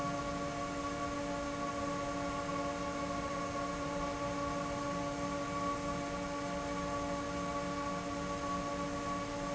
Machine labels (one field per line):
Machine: fan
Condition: abnormal